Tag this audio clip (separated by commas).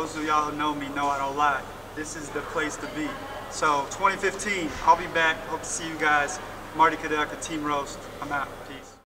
Speech